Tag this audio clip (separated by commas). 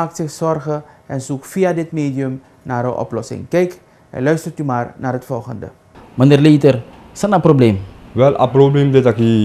Speech